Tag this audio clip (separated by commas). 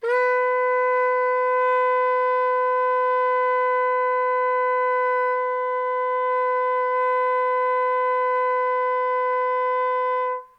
Music, Musical instrument, Wind instrument